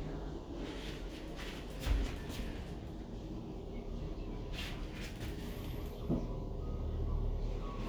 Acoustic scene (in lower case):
elevator